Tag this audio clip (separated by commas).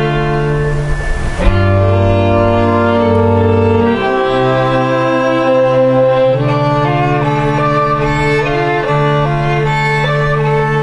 Violin, Music